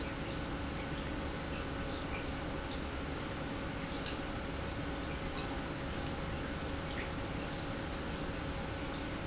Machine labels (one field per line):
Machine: pump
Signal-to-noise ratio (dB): -6 dB